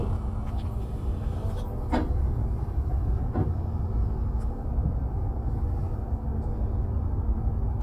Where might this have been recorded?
on a bus